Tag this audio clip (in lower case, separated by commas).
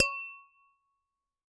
glass, tap